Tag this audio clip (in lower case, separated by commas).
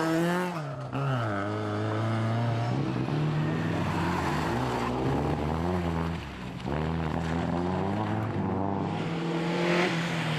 motor vehicle (road), car, car passing by, auto racing, vehicle